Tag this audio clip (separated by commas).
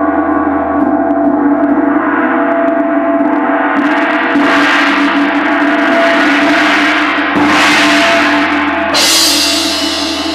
Gong